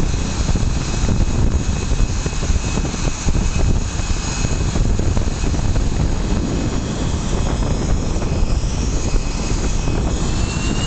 A jet engine and strong winds